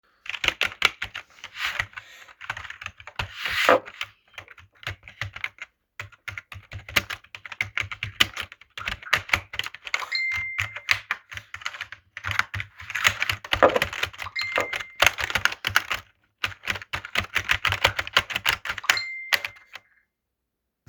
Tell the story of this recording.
I was working to type an email and received a facebook notification on my phone.